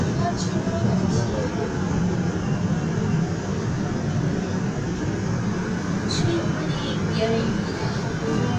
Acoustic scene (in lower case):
subway train